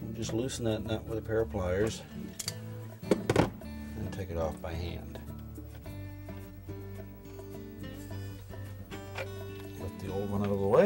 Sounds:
Music, Speech

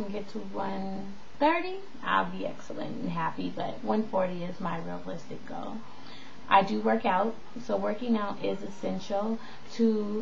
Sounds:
Speech

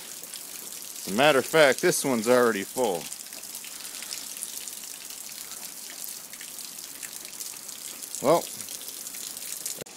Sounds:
Rain, Raindrop

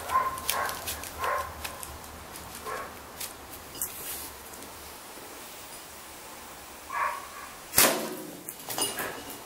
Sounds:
outside, rural or natural

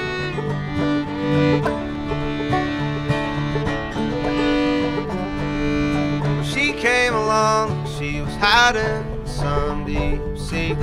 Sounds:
Music

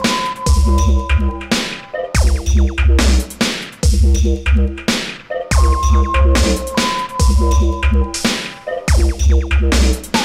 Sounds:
Electronic music, Music, Dubstep

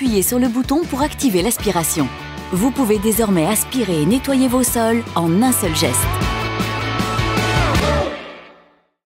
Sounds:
Speech, Music

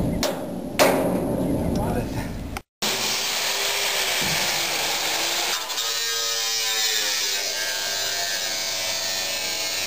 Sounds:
Speech

